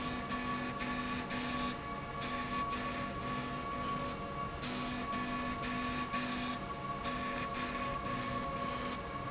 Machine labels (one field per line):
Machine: slide rail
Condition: abnormal